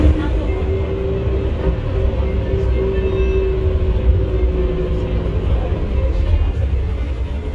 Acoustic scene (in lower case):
bus